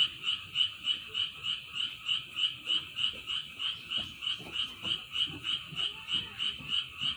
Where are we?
in a park